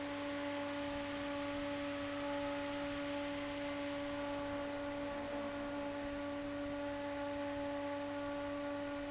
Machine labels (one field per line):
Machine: fan